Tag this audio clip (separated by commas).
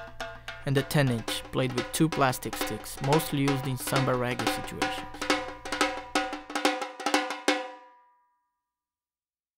Speech, Music